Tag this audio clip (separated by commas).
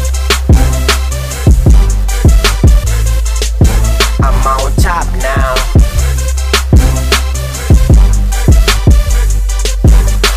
Music, Rhythm and blues